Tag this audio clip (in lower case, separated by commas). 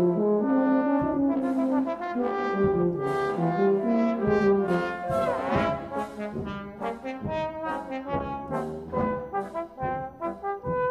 playing french horn, french horn, trombone, brass instrument